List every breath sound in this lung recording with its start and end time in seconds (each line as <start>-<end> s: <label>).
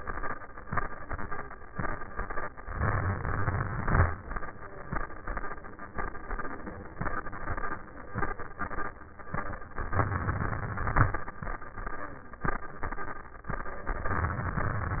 2.70-3.78 s: inhalation
3.78-4.36 s: exhalation
9.80-11.10 s: inhalation
13.48-14.97 s: inhalation